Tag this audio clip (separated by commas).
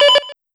Alarm, Telephone